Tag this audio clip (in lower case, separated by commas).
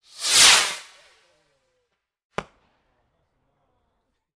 fireworks, explosion, swoosh